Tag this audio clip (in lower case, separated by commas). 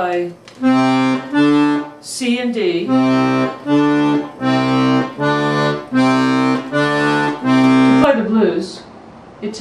music, speech, accordion